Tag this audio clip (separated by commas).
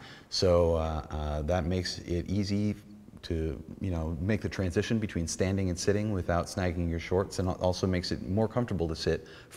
Speech